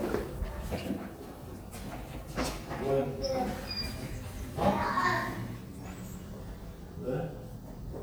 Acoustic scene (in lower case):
elevator